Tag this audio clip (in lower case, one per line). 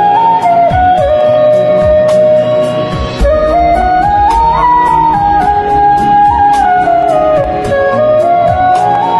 playing flute